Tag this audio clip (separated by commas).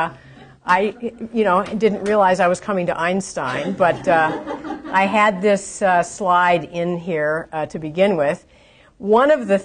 Conversation, Speech